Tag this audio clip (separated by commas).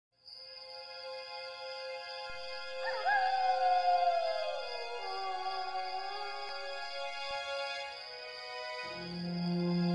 Musical instrument, Music